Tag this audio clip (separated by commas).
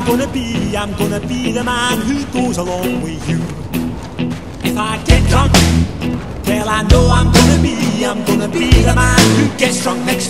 Music